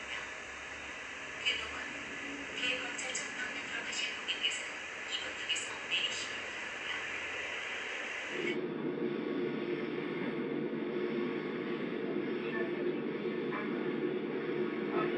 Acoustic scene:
subway train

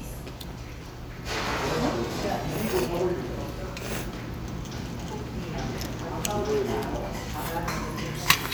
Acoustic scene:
restaurant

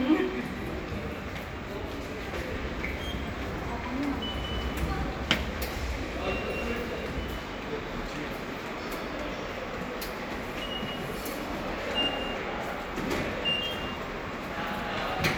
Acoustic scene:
subway station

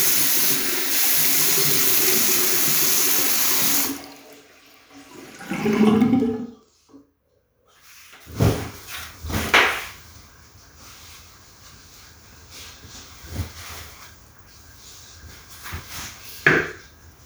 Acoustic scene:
restroom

